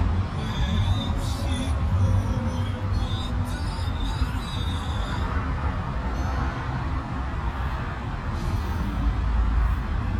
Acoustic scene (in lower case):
car